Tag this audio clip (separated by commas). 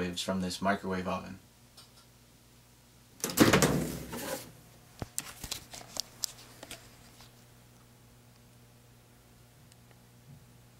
inside a small room, Speech